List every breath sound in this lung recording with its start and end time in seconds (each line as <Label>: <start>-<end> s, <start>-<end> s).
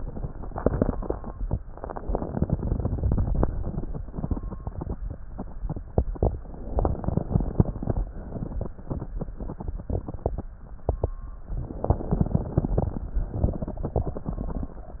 Inhalation: 1.71-3.46 s, 6.72-8.02 s, 11.56-13.35 s
Exhalation: 3.48-5.00 s, 8.05-9.84 s, 13.34-14.73 s